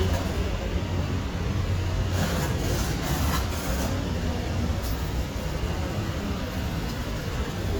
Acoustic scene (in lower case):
residential area